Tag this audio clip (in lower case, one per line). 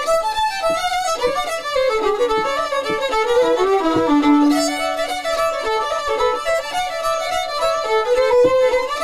musical instrument
music
fiddle